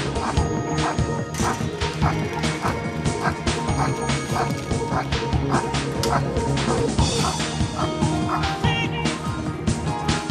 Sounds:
dog, animal, domestic animals, music

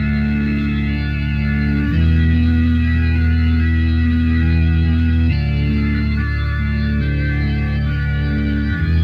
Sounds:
guitar, musical instrument, music

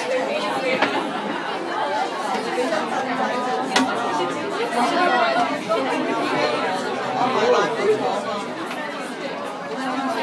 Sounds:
speech

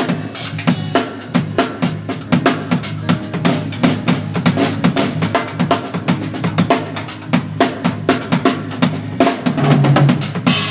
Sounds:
bass drum, rimshot, musical instrument, drum kit, music, cymbal, hi-hat, drum

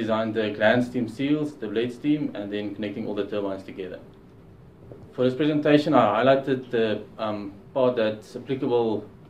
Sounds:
speech

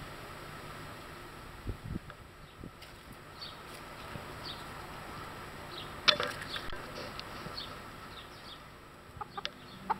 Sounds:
livestock

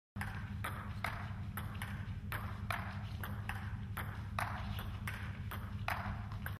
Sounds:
thwack

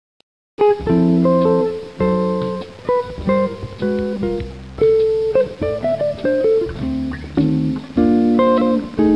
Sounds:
musical instrument, acoustic guitar, plucked string instrument, music, guitar

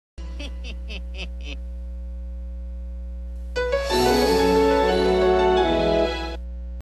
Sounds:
music

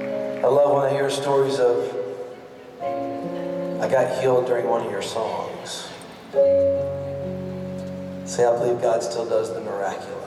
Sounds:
music, speech

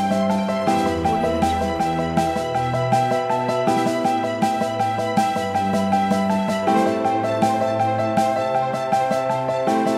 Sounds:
music, rhythm and blues

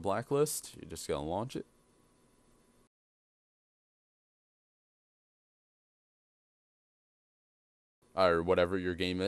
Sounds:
speech

